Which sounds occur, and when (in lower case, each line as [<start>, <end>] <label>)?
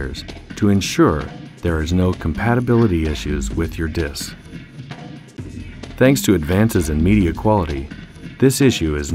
[0.00, 0.25] man speaking
[0.00, 9.14] music
[0.59, 1.21] man speaking
[1.65, 2.11] man speaking
[2.25, 4.39] man speaking
[5.94, 7.86] man speaking
[8.36, 9.14] man speaking